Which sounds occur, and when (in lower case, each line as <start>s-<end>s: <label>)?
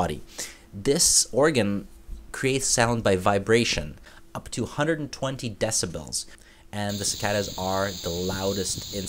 0.0s-0.2s: man speaking
0.0s-9.0s: mechanisms
0.2s-0.6s: breathing
0.7s-1.8s: man speaking
2.0s-2.2s: generic impact sounds
2.3s-3.9s: man speaking
3.1s-3.4s: surface contact
4.0s-4.2s: breathing
4.3s-6.3s: man speaking
6.4s-6.6s: breathing
6.7s-9.0s: man speaking
6.7s-9.0s: insect